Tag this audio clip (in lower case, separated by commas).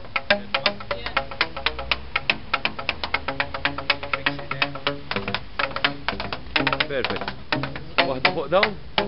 music, percussion, speech